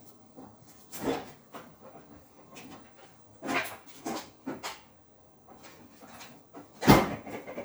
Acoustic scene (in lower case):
kitchen